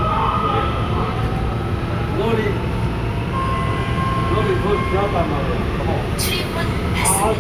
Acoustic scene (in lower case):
subway train